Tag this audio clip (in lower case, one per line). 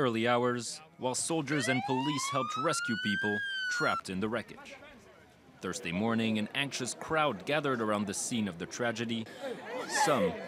speech